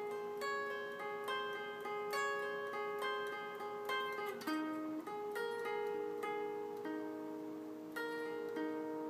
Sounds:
Guitar, Music, Musical instrument

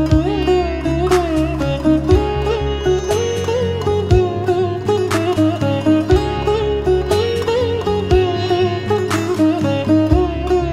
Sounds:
playing sitar

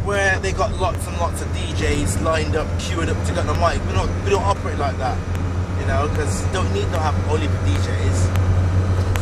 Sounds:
Speech

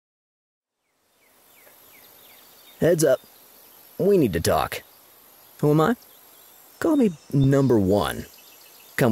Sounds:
Insect, Cricket

